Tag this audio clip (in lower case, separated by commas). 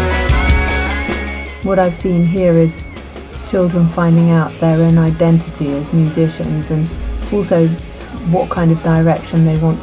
music, speech